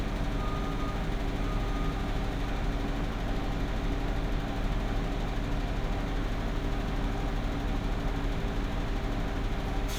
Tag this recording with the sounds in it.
reverse beeper